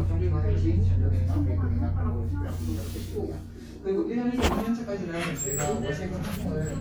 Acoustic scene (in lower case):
crowded indoor space